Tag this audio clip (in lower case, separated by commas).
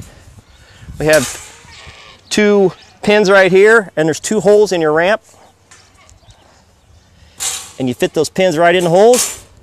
speech, goat, animal